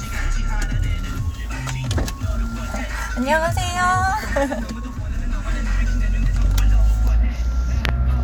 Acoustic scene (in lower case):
car